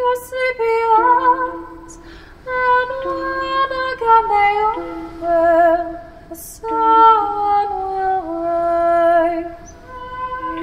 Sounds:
Music, Lullaby

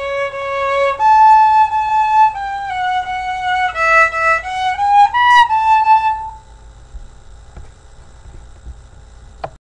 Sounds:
Music, Violin, Musical instrument

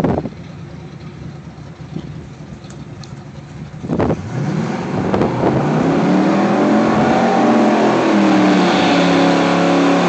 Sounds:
Car, Motor vehicle (road), Vehicle

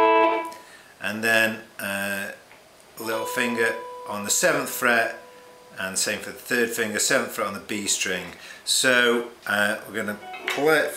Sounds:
Speech, Plucked string instrument, Guitar, Rock music, Musical instrument, Electric guitar, Music

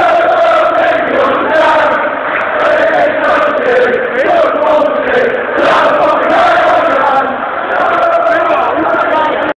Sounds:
Speech

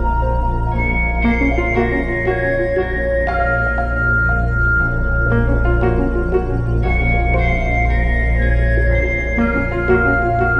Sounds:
Music

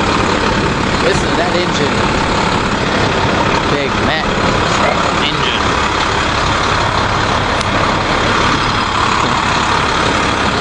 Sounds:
Speech, Truck, Vehicle

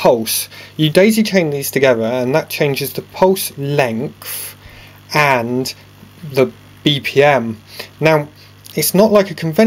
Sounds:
Speech

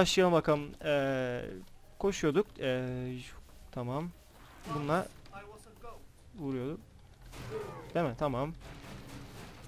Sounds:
Speech

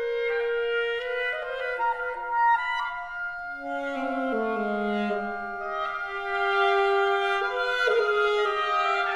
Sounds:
playing oboe

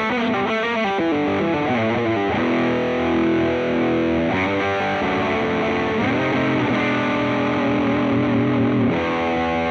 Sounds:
Music, Electric guitar, Strum, Plucked string instrument, Musical instrument, playing electric guitar

